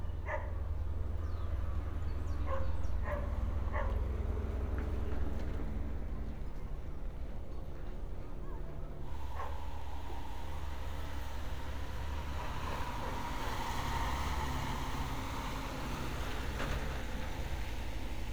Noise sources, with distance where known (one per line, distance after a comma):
engine of unclear size
dog barking or whining